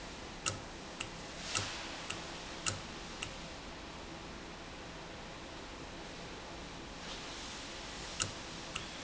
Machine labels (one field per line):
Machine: valve